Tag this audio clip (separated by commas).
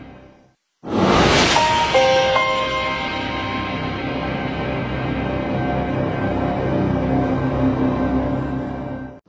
Music